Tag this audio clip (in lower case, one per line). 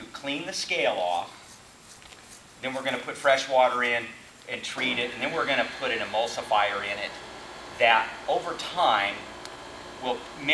speech